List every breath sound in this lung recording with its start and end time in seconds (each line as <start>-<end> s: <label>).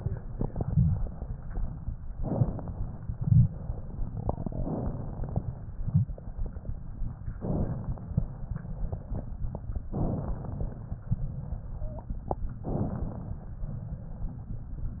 2.18-3.00 s: inhalation
4.36-5.54 s: inhalation
7.38-8.22 s: inhalation
9.92-10.91 s: inhalation
12.64-13.62 s: inhalation